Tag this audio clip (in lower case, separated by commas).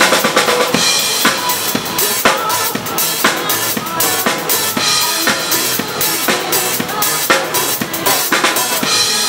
drum roll, percussion, bass drum, snare drum, rimshot, drum, drum kit